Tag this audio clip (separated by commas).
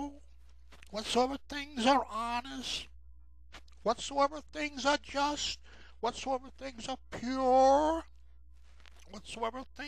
Speech